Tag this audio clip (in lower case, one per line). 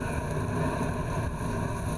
wind